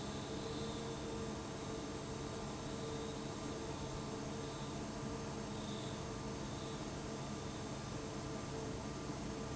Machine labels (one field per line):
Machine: fan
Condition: abnormal